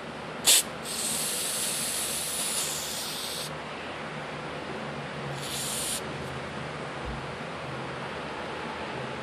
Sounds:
hiss

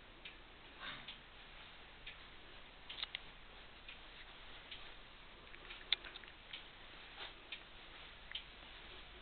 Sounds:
clock

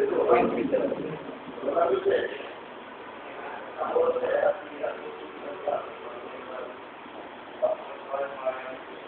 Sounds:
speech

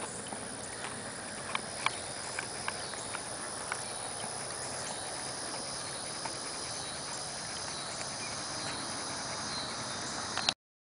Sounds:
clip-clop

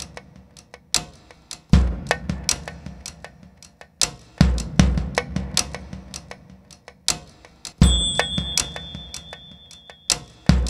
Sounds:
music, percussion

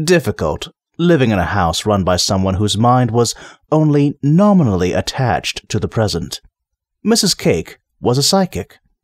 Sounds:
narration, speech synthesizer, speech

